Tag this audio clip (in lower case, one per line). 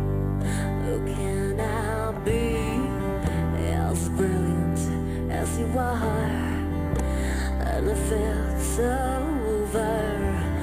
music